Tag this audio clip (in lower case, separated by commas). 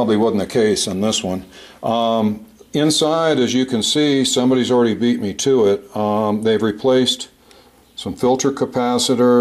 speech